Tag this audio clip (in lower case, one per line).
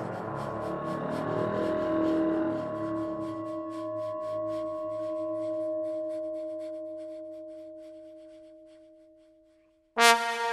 brass instrument